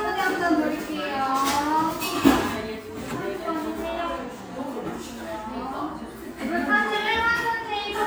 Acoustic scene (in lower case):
cafe